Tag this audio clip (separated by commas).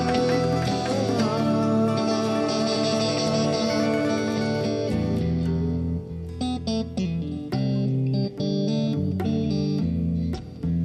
Music, Effects unit, Distortion